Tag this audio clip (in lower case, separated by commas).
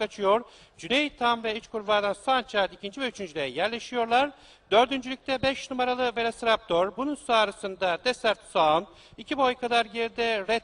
speech